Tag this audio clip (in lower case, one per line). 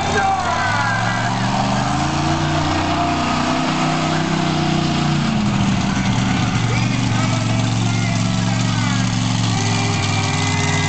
vehicle
speech
truck